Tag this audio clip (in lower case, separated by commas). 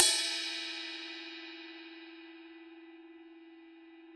percussion, crash cymbal, cymbal, music, musical instrument